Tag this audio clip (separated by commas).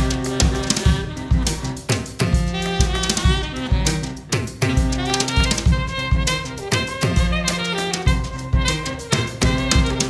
Saxophone, Brass instrument, playing saxophone